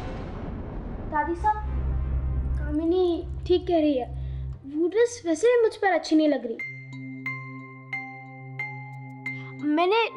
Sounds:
Glockenspiel, Mallet percussion, xylophone

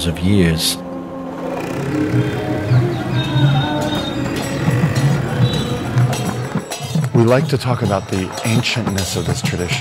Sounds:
Speech

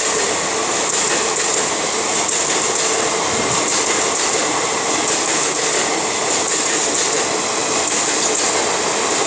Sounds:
Train whistle, Rail transport, Train, Railroad car, Vehicle

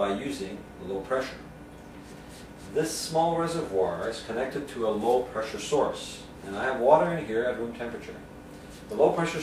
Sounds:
Speech

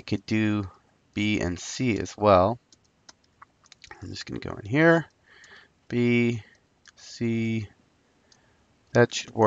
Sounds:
Speech

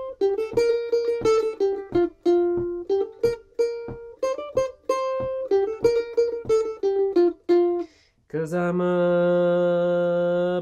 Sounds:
playing mandolin

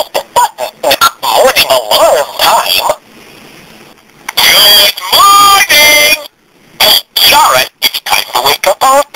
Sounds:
Speech

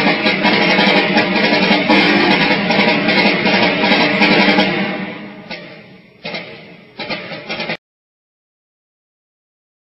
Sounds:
Percussion, Music

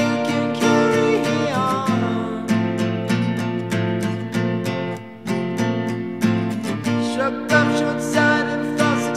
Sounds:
Music

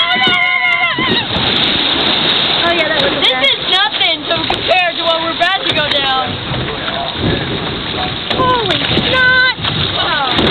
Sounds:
Water

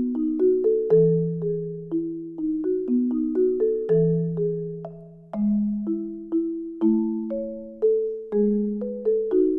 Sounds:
Percussion, Music

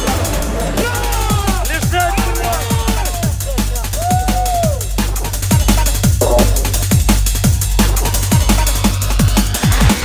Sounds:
Drum and bass

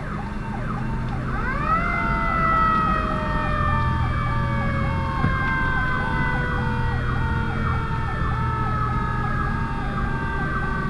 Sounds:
Vehicle, Engine

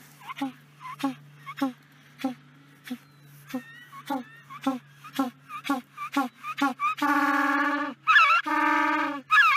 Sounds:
penguins braying

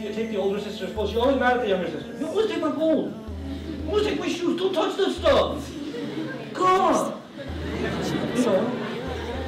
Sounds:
Speech, Laughter, Music

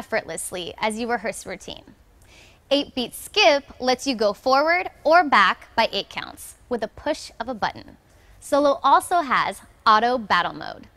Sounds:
Speech

